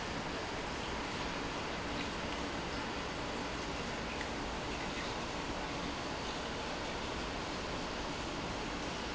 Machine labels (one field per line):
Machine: pump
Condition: normal